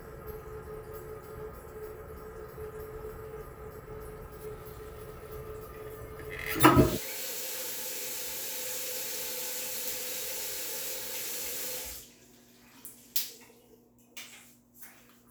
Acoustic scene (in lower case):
restroom